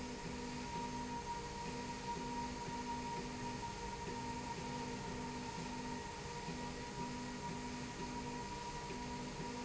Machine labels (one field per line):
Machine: slide rail